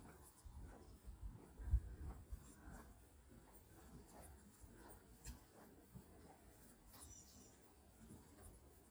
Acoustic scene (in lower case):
park